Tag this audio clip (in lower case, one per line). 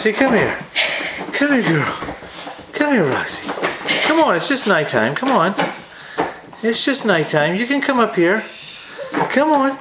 speech